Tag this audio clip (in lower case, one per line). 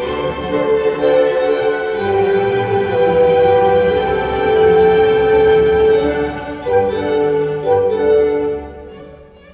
violin
musical instrument
music